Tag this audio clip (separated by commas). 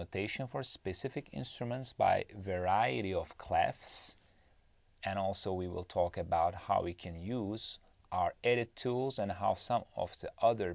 Speech